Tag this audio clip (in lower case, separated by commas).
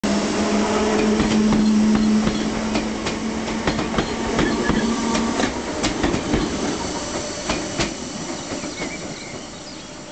vehicle, rail transport, railroad car, train